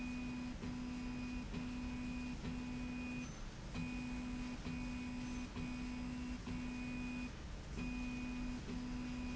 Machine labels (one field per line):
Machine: slide rail